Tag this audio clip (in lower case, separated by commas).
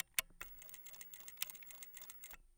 mechanisms